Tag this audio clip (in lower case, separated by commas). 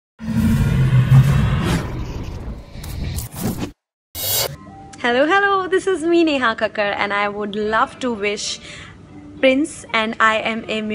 music